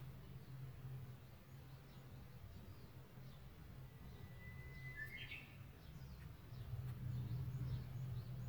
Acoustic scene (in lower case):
park